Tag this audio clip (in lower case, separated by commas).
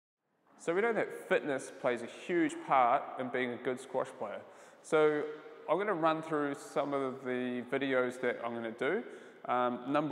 playing squash